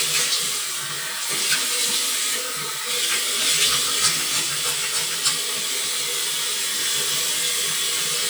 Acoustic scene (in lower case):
restroom